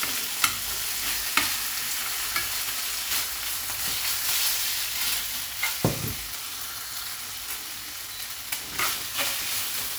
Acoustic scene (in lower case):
kitchen